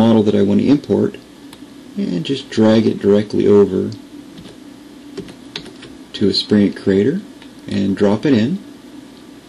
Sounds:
speech

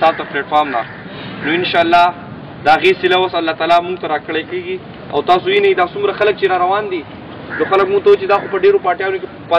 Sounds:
speech
monologue
man speaking

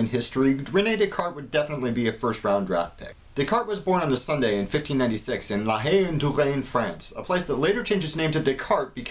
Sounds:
speech

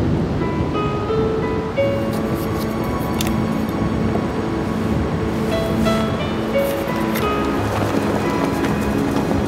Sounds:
music
wind noise (microphone)

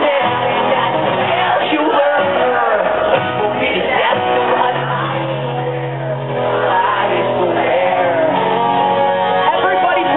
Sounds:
music

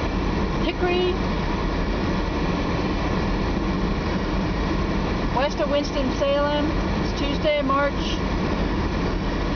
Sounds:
vehicle
outside, urban or man-made
car
speech

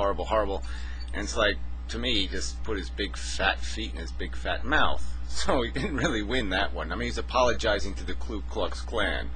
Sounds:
speech

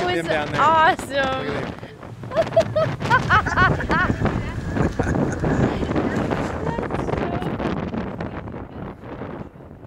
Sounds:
wind
wind noise (microphone)

